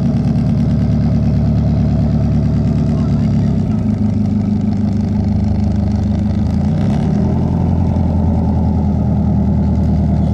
A motor boat engine is running